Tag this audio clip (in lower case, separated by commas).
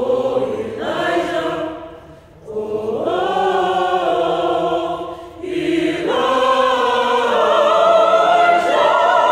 singing choir